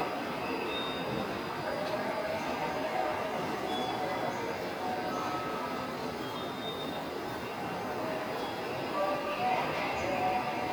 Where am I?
in a subway station